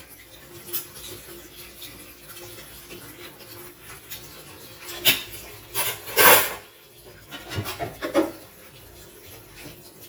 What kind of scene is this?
kitchen